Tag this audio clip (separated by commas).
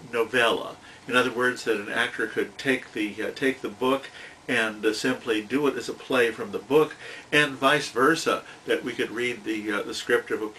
Speech